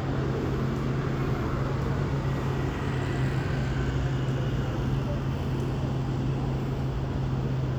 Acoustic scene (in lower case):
street